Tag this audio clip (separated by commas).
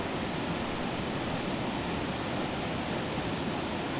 Water